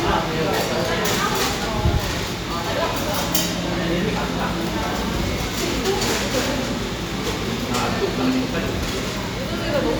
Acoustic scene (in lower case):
cafe